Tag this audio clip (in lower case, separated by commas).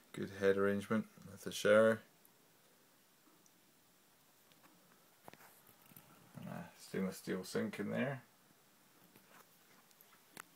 inside a small room, speech